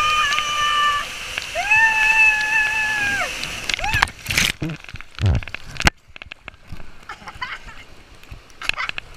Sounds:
Stream, Gurgling

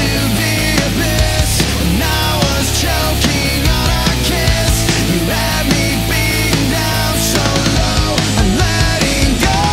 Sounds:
Music

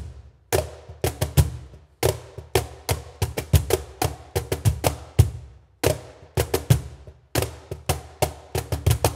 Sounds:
Percussion, Music

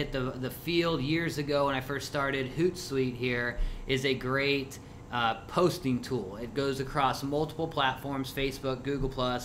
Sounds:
Speech

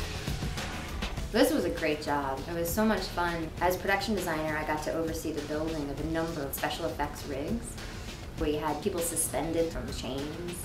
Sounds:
Speech, Music

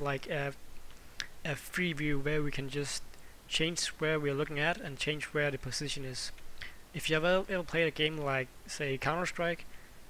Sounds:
Speech

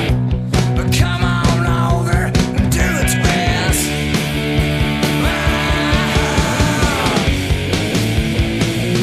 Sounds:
Grunge, Music

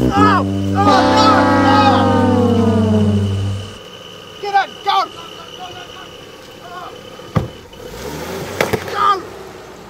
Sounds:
Car, outside, urban or man-made, Music, Vehicle

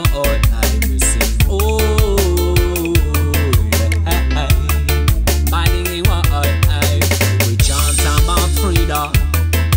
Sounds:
Music

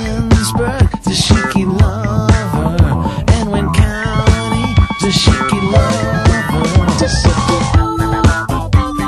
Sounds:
Exciting music, Music

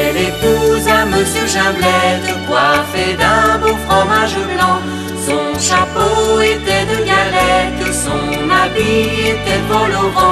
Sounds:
Music

